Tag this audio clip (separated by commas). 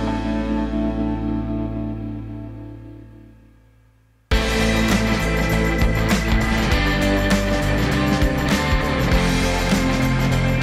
Electronic music, Music